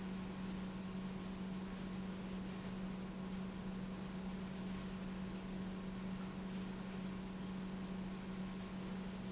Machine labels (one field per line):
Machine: pump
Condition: normal